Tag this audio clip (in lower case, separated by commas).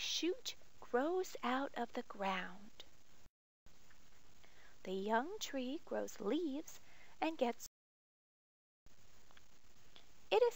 speech